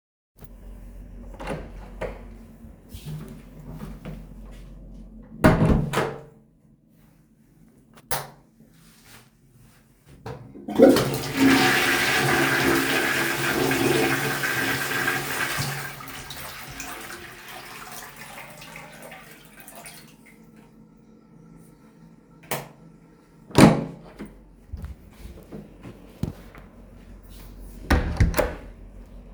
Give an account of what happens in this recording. i went to the bathroom to flush the toilet and then i turned off the light and left